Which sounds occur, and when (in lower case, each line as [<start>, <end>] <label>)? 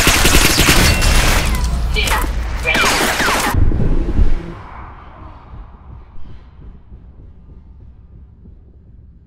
[0.00, 1.65] fusillade
[0.00, 9.25] rumble
[0.00, 9.25] video game sound
[0.94, 1.44] sound effect
[1.93, 2.18] human voice
[2.62, 2.87] human voice
[2.64, 3.52] fusillade
[3.55, 4.63] sound effect